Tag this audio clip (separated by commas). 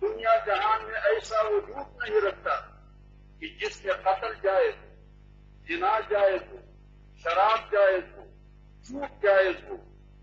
Speech, Narration, man speaking